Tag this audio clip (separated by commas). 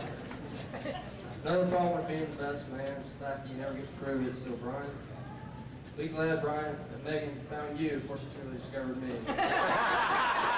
man speaking, Narration, Speech